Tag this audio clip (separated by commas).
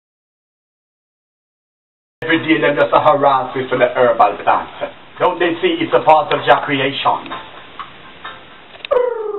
inside a small room, Silence, Music, Speech